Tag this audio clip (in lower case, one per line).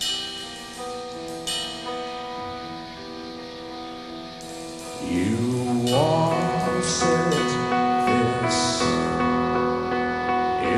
music